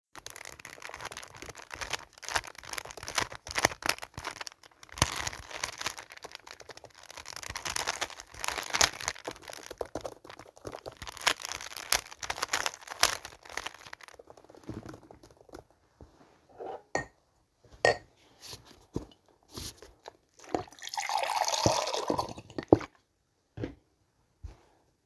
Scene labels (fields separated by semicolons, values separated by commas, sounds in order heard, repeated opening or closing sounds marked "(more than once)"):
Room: office; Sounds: keyboard typing, cutlery and dishes, running water